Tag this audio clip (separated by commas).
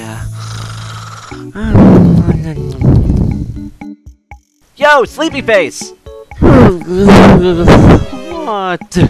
Speech, Music